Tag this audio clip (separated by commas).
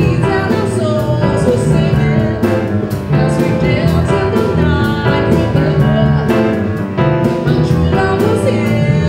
Music